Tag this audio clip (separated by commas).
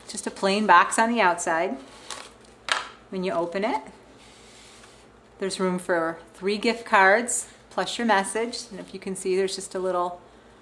Speech